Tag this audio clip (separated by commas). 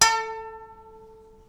Musical instrument, Bowed string instrument, Music